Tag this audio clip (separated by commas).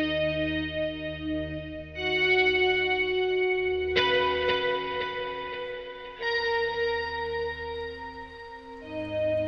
Music, Effects unit